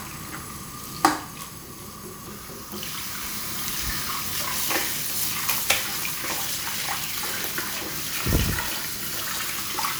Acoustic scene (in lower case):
restroom